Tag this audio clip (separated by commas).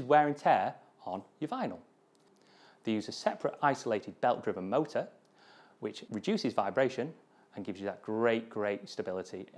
Speech